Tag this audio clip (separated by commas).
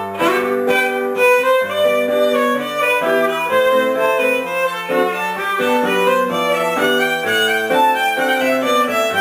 Musical instrument, Music, fiddle, playing violin